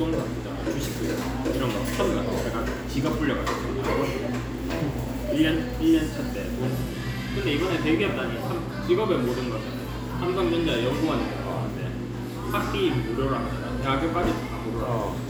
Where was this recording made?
in a cafe